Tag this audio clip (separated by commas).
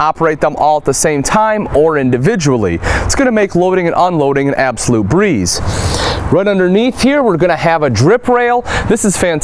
Speech